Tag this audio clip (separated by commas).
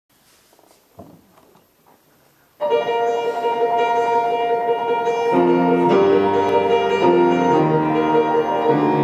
Music, Piano, Musical instrument